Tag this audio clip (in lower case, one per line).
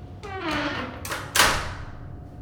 squeak